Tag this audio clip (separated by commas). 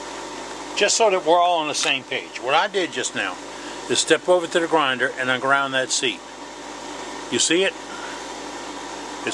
Speech